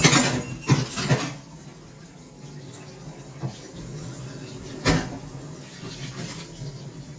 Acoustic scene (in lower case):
kitchen